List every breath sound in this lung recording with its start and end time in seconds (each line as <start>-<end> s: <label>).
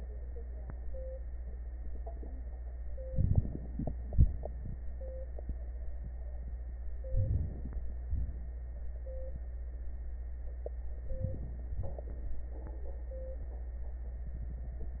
3.08-4.09 s: inhalation
4.09-4.82 s: exhalation
7.13-7.87 s: inhalation
8.02-8.76 s: exhalation
11.01-11.75 s: inhalation
11.74-12.48 s: exhalation